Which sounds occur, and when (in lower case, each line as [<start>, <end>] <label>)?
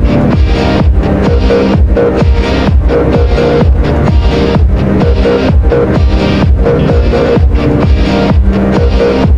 [0.00, 9.35] music